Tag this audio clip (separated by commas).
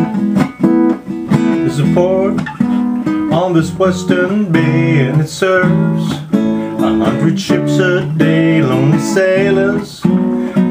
Strum, Music, Acoustic guitar, Guitar, Plucked string instrument, Musical instrument